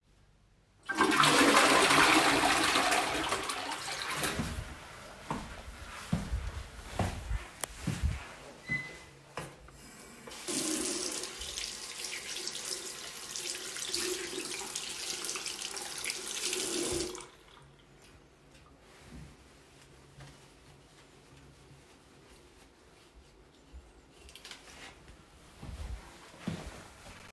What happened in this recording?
I flushed the toilet then walked to the sink I run the water then started washing my hands. After washing my hands, I dried them with a towel and walked to the door.